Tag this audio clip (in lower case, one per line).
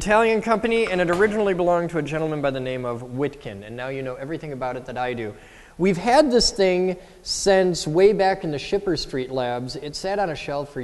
speech